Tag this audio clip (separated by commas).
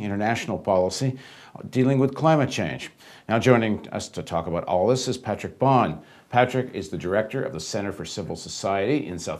Speech